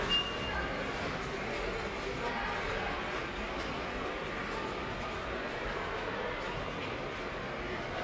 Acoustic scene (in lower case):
subway station